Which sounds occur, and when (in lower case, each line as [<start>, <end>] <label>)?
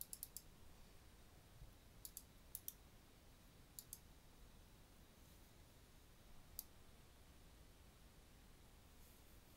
[0.00, 0.52] computer keyboard
[0.00, 9.55] background noise
[2.04, 2.26] computer keyboard
[2.57, 2.80] computer keyboard
[3.82, 4.00] computer keyboard
[6.57, 6.76] computer keyboard